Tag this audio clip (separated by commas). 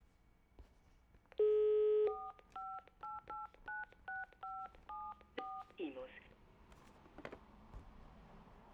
Alarm, Telephone